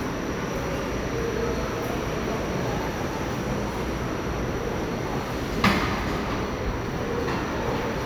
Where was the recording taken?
in a subway station